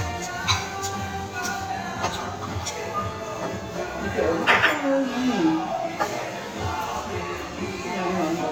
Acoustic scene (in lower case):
restaurant